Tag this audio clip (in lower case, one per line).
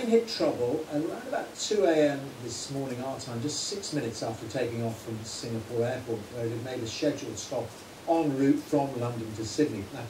speech